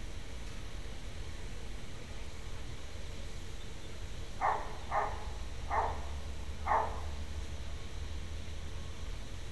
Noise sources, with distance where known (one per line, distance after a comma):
dog barking or whining, near